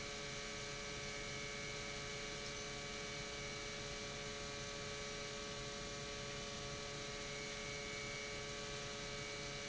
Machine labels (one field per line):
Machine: pump